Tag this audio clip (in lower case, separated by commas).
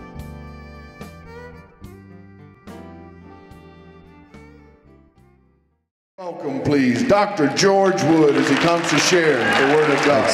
speech, music